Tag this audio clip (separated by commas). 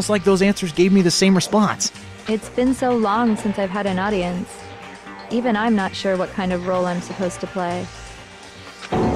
Music, Speech